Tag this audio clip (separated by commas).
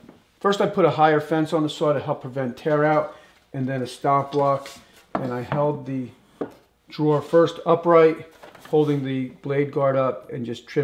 opening or closing drawers